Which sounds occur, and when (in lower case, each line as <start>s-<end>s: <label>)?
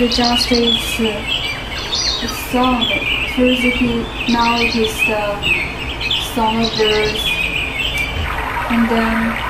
0.0s-9.4s: bird song
0.0s-0.8s: female speech
1.0s-1.3s: female speech
2.2s-3.0s: female speech
3.3s-5.3s: female speech
6.3s-7.2s: female speech
8.7s-9.4s: female speech